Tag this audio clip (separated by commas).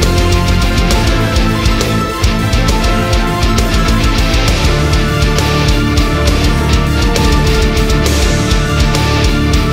Music